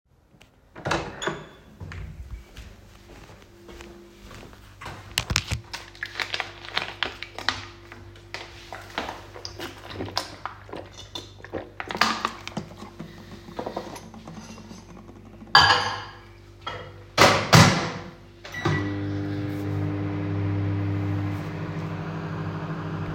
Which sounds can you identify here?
door, footsteps, cutlery and dishes, microwave